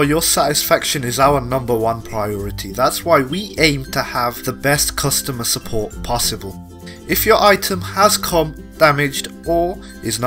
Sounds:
speech
music

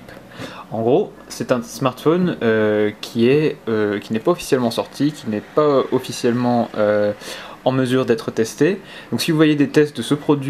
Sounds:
speech

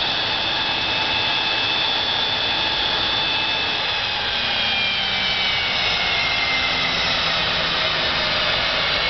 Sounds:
engine

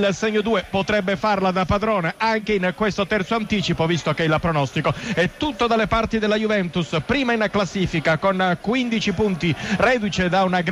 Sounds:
speech

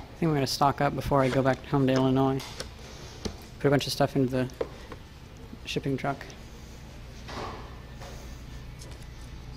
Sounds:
speech

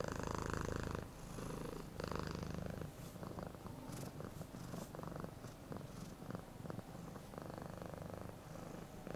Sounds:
cat purring

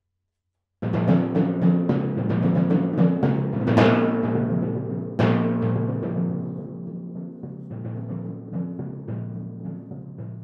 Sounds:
playing tympani

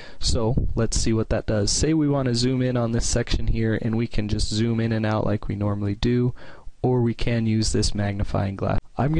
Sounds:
speech

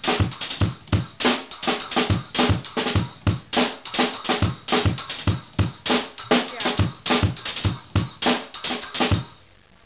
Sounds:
drum
music

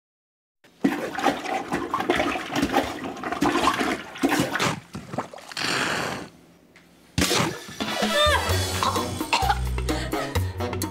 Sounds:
toilet flush
music
inside a small room

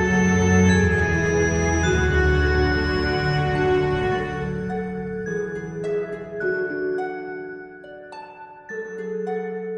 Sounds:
music
background music
soundtrack music

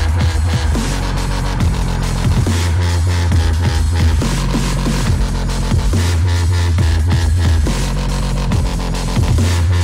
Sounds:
music
dubstep

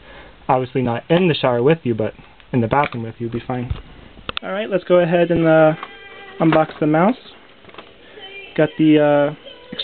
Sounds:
music
speech

